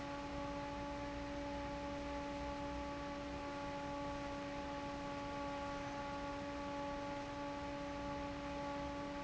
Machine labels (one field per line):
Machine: fan